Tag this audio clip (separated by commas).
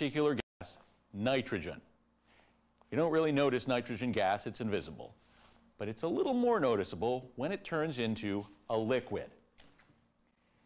Speech